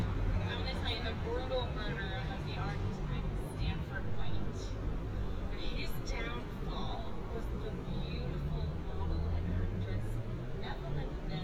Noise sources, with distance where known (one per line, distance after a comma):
person or small group talking, near